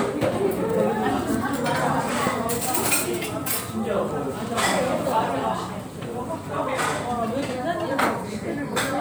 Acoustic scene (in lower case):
restaurant